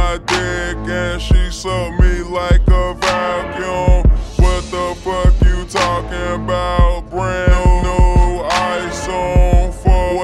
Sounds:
music

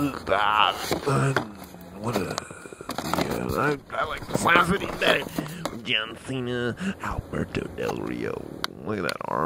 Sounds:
speech

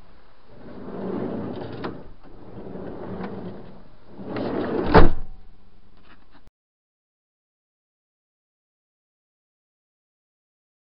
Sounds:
sliding door

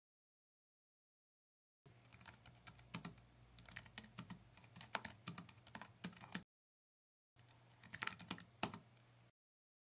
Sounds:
computer keyboard

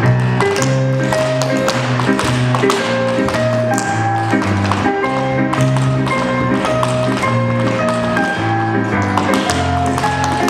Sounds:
music
tap

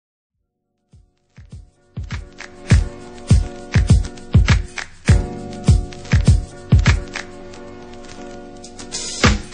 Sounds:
outside, urban or man-made
music

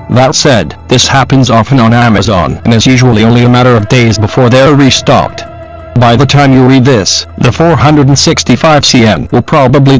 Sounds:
music
speech

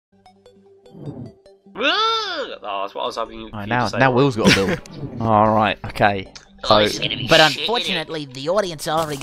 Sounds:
speech

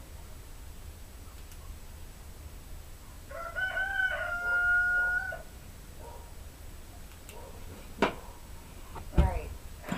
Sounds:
fowl
cock-a-doodle-doo
chicken

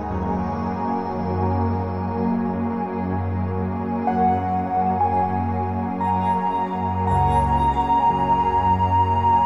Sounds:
music
new-age music

